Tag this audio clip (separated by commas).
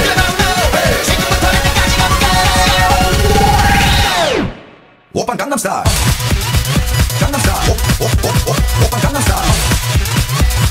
Exciting music, Music